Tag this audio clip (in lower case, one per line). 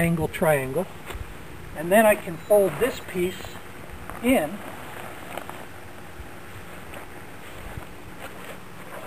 speech
outside, rural or natural